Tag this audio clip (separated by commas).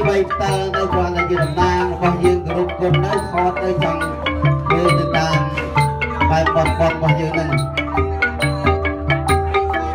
Music, Speech